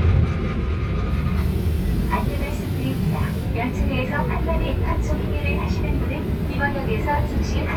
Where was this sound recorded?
on a subway train